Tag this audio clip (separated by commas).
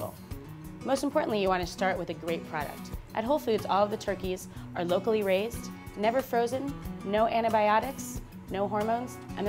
Music, Speech